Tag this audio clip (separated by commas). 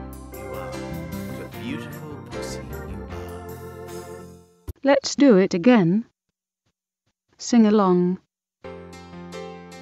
Music, Speech